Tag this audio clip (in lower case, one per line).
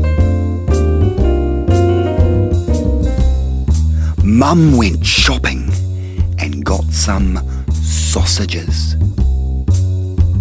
music
speech